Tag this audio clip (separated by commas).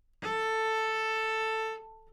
Bowed string instrument, Musical instrument, Music